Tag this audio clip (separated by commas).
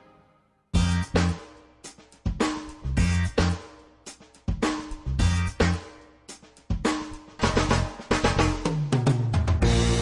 Hi-hat, Cymbal